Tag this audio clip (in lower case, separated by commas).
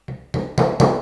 tools, hammer